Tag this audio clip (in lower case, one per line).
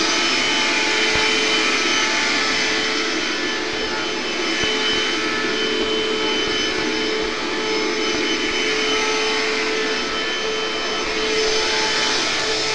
domestic sounds